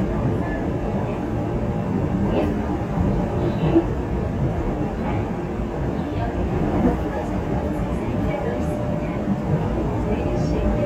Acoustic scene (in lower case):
subway train